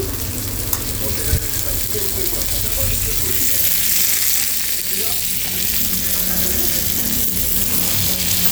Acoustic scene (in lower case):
restaurant